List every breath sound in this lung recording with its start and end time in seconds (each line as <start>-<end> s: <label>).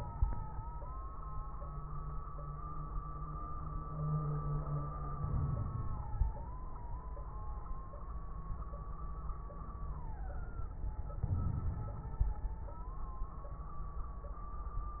5.17-6.39 s: inhalation
5.17-6.39 s: crackles
11.25-12.69 s: inhalation
11.25-12.69 s: crackles